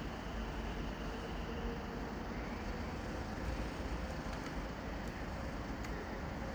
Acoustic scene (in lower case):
residential area